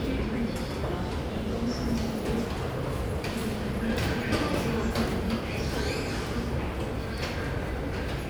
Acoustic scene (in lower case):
subway station